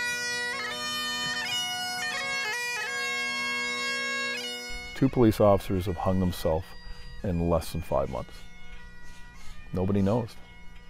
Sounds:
music, speech

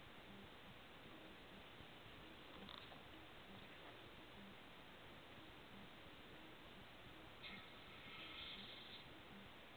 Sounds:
speech

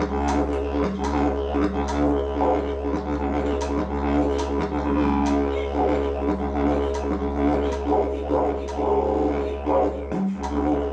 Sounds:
music, didgeridoo

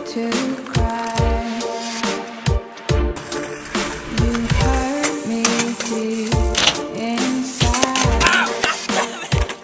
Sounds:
vehicle, bicycle

